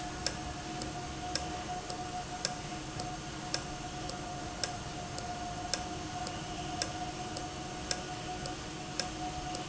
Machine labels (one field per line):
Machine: valve